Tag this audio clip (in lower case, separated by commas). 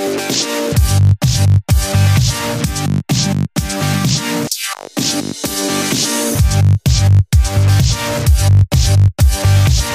dubstep, music, electronic dance music